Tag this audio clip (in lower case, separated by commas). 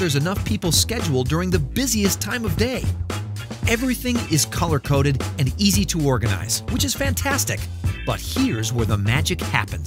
speech, music